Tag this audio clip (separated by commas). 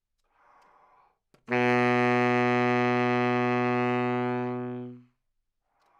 Musical instrument, woodwind instrument, Music